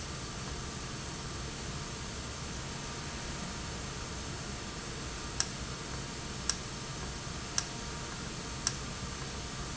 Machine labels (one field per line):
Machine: valve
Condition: normal